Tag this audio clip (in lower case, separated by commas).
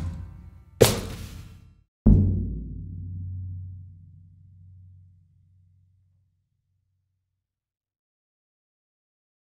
sound effect, music